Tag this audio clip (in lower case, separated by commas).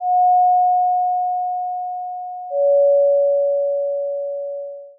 doorbell, alarm, domestic sounds, door